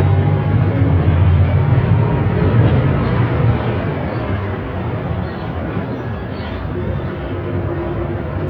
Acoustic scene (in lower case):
bus